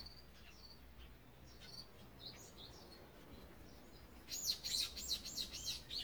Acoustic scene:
park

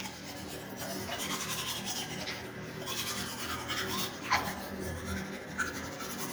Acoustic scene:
restroom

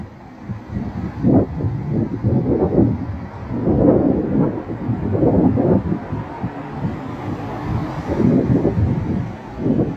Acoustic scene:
street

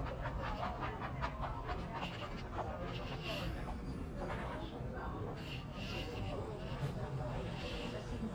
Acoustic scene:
crowded indoor space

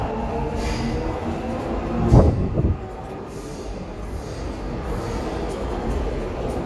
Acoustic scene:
subway station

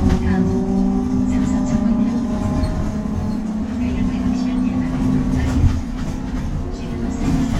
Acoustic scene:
bus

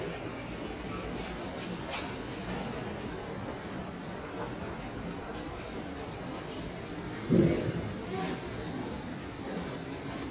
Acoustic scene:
subway station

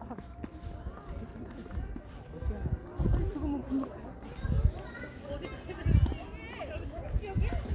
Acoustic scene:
park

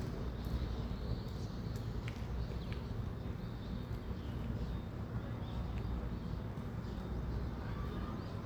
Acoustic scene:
residential area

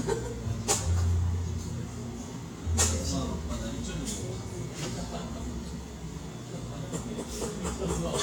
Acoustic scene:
cafe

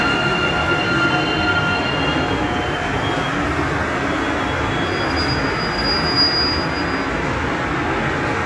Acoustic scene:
subway station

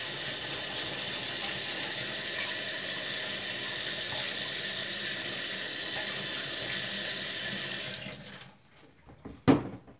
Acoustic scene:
kitchen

